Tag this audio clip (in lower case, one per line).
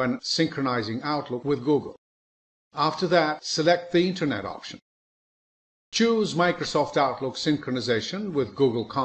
speech